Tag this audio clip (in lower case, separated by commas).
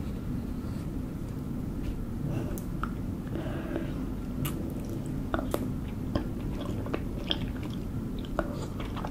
people slurping